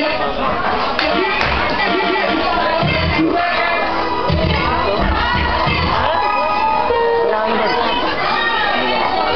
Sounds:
speech, music

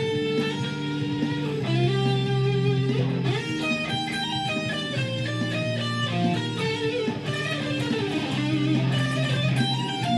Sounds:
electric guitar, musical instrument, guitar, plucked string instrument, music, acoustic guitar, strum

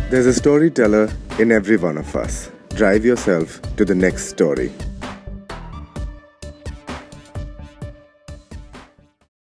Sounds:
music, speech

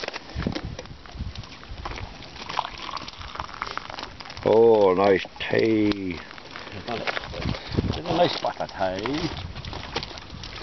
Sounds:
speech, outside, rural or natural

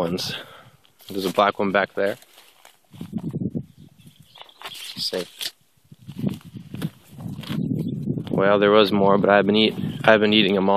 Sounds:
outside, rural or natural, speech

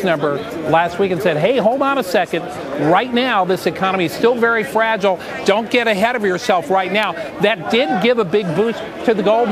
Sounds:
speech

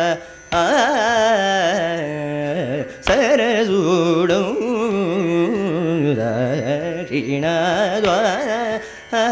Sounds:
carnatic music, music

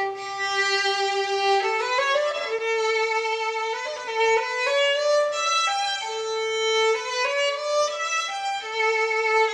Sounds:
music, fiddle

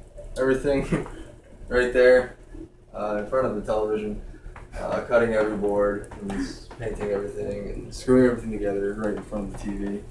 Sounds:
speech

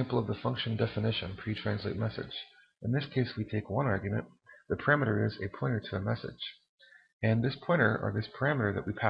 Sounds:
speech

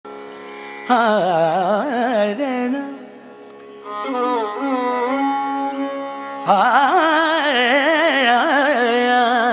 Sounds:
music, carnatic music, musical instrument, sitar, music of asia

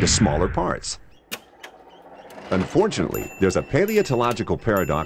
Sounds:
speech

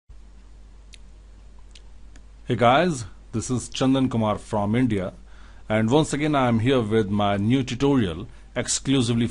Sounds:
inside a small room, speech

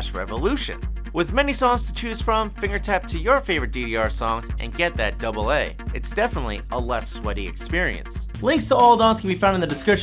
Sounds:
speech

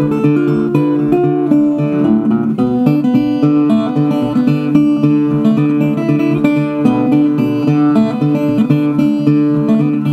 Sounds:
acoustic guitar, strum, plucked string instrument, musical instrument, guitar, music

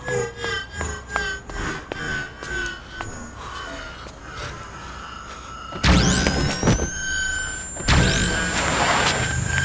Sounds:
outside, urban or man-made

